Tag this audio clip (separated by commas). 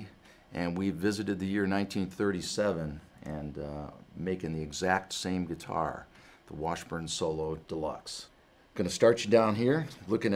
Speech